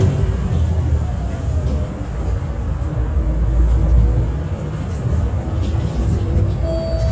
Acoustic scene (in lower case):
bus